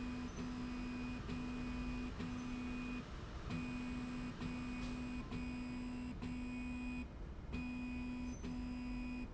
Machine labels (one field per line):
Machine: slide rail